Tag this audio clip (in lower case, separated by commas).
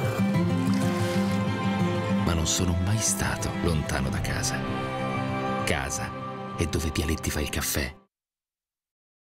music, speech